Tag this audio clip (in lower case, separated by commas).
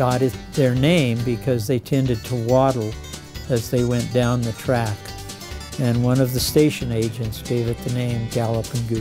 speech, music